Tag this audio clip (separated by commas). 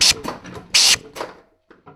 Tools